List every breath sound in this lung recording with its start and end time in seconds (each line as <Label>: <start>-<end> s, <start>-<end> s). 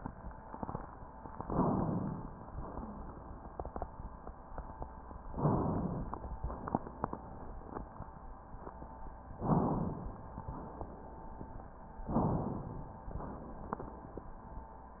Inhalation: 1.33-2.47 s, 5.26-6.33 s, 9.34-10.28 s, 12.09-13.03 s